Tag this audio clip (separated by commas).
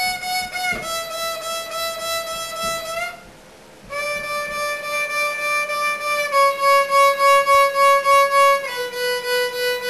Violin, playing violin, Music, Musical instrument